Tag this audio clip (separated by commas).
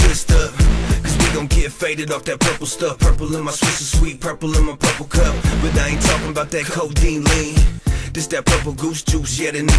Music